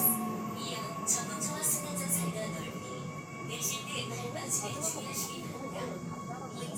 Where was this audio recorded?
on a subway train